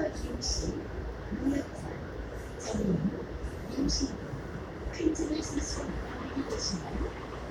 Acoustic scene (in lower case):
subway train